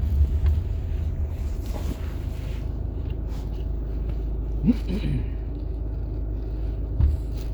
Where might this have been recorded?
in a car